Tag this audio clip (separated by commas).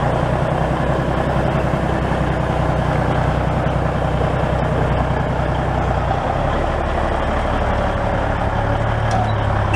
Vehicle